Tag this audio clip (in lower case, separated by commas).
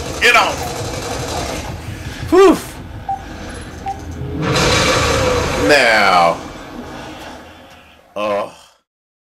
speech